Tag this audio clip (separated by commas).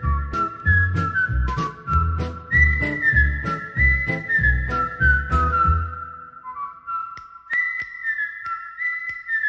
people whistling